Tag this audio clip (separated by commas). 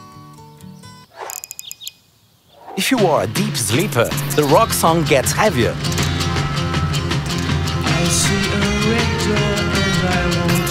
Music, Speech